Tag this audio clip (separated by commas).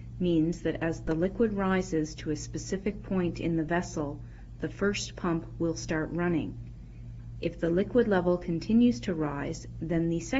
Speech